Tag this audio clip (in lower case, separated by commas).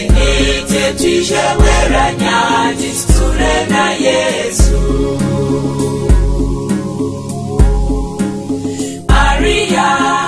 music